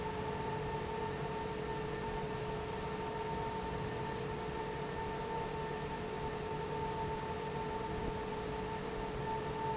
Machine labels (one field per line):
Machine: fan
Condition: normal